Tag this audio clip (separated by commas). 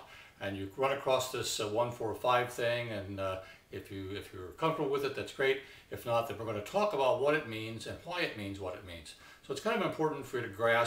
Speech